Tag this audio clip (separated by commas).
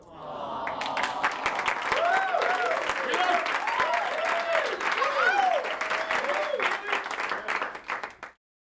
Human group actions, Applause, Crowd